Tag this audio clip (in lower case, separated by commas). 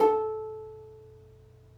plucked string instrument, music, musical instrument